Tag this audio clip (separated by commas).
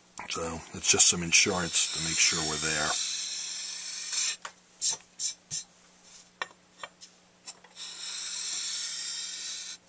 inside a small room, Speech